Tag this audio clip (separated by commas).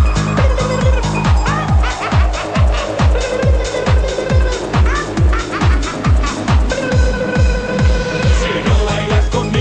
Music, Funk, Pop music